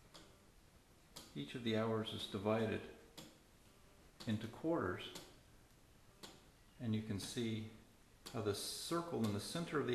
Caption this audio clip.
A clock is ticking and a man is speaking